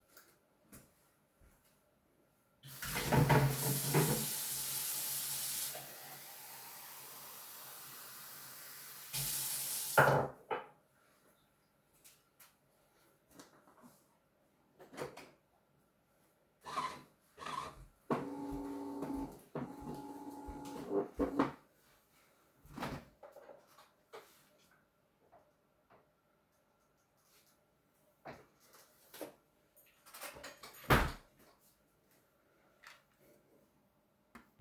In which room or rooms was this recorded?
kitchen